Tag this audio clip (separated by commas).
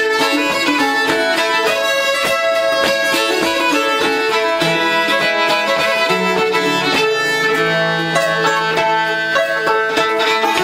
fiddle, Music, Banjo